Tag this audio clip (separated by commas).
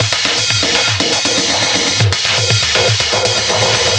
Percussion, Drum kit, Musical instrument, Music